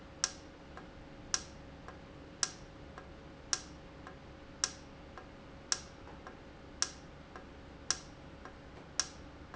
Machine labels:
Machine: valve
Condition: normal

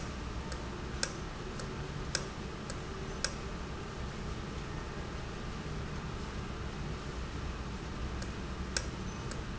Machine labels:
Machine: valve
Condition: normal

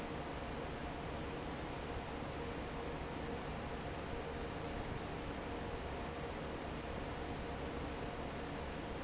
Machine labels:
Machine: fan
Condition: normal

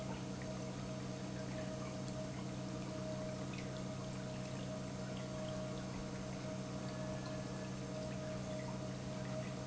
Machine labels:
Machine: pump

